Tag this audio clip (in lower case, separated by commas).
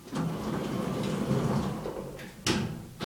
door, sliding door, home sounds